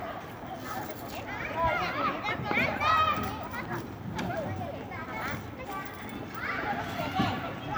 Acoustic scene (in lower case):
residential area